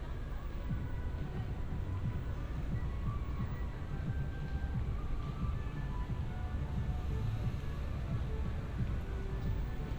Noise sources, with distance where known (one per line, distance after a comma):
music from a fixed source, far